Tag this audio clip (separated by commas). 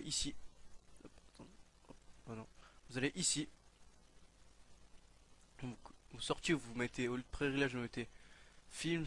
Speech